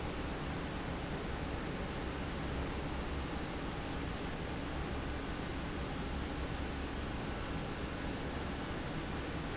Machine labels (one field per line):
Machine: fan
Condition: normal